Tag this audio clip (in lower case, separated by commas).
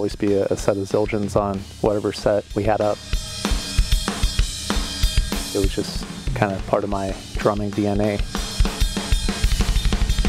speech, music